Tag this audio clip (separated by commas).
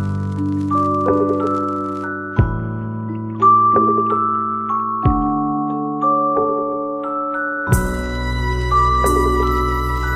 Music, Musical instrument